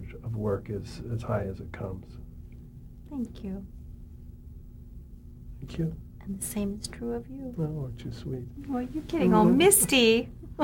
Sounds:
Conversation, Speech

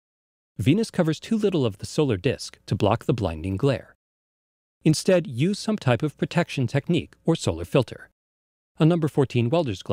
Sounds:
Speech

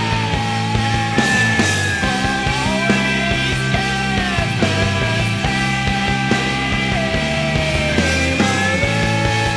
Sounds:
Music, Grunge

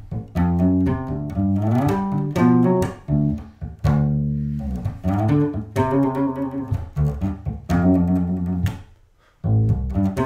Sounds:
Bass guitar, Plucked string instrument, Music, Musical instrument, Guitar

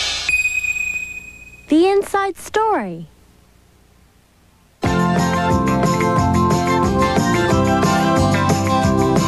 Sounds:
Speech, Music

